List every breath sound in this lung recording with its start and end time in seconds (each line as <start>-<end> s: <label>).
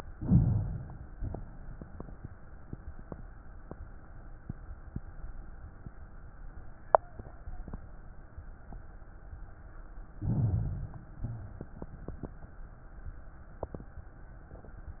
0.00-1.11 s: inhalation
1.12-2.62 s: exhalation
10.16-11.07 s: inhalation
11.09-12.52 s: exhalation